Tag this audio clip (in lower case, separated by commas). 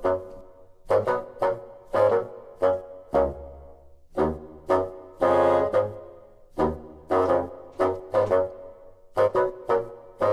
playing bassoon